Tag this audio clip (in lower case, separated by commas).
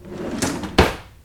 home sounds, drawer open or close